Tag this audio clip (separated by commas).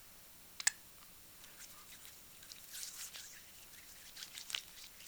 Hands